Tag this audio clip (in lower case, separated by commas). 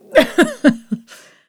human voice, laughter, giggle